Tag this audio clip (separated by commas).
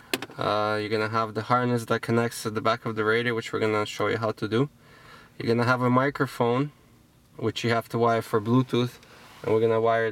Speech